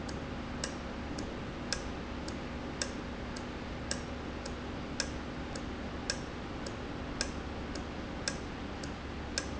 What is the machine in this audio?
valve